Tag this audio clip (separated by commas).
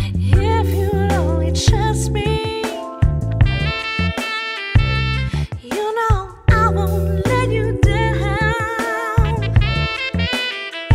Singing, Music